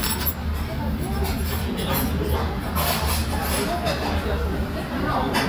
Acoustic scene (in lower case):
restaurant